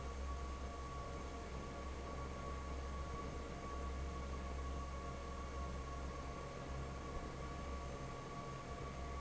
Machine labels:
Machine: fan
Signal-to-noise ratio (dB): 6 dB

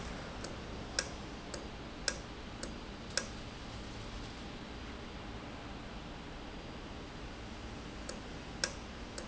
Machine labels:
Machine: valve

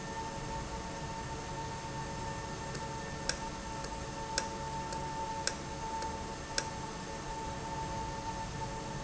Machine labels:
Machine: valve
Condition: normal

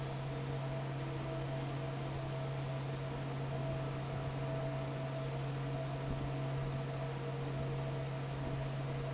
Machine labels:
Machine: fan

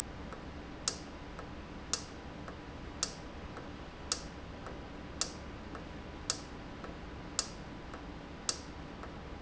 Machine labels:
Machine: valve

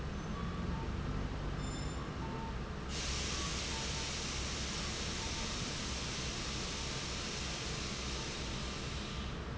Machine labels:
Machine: fan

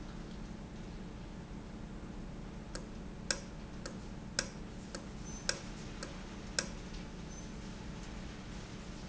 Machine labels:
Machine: valve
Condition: normal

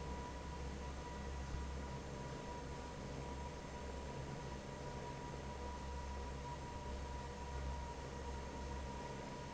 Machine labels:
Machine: fan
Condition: normal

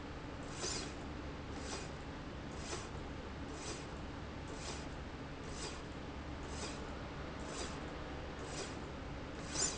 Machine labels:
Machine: slide rail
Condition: normal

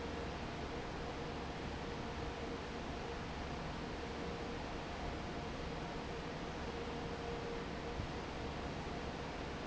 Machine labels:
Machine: fan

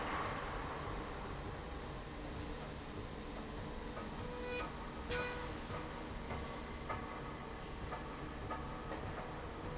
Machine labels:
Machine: slide rail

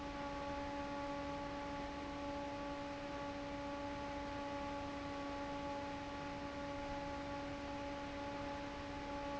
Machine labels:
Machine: fan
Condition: normal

